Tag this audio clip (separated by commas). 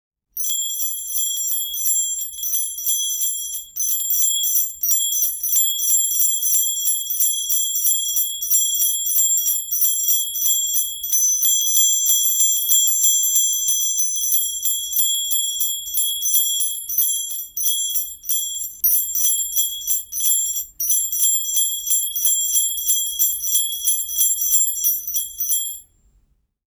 Bell